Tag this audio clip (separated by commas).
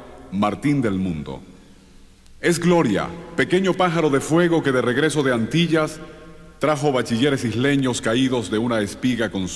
Speech